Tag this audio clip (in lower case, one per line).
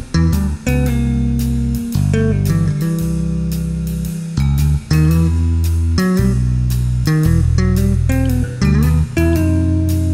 bass guitar
music
guitar